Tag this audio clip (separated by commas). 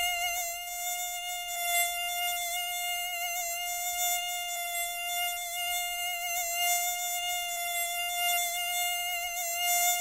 mosquito buzzing